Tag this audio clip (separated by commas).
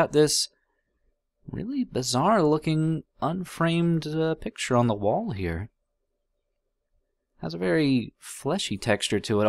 Speech